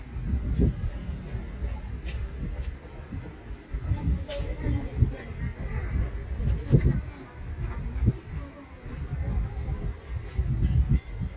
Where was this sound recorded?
in a residential area